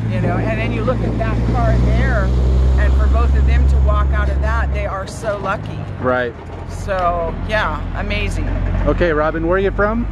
A person talks while a motor rumbles on